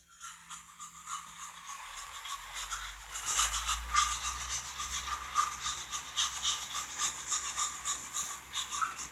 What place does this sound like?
restroom